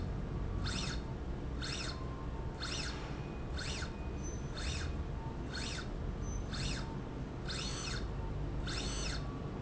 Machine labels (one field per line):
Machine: slide rail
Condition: normal